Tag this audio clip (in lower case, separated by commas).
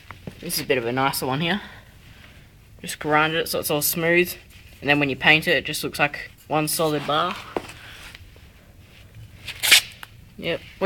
speech